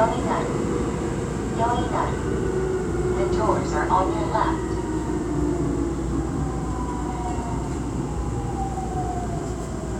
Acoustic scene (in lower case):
subway train